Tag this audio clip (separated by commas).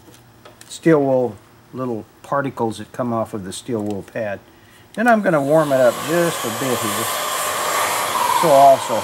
Speech